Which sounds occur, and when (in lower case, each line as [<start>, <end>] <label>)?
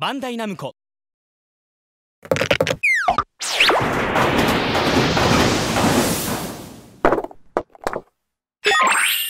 [0.00, 0.69] man speaking
[2.20, 2.70] generic impact sounds
[2.75, 3.20] sound effect
[3.05, 3.21] generic impact sounds
[3.37, 7.02] sound effect
[7.02, 7.27] generic impact sounds
[7.51, 8.07] generic impact sounds
[8.62, 9.25] sound effect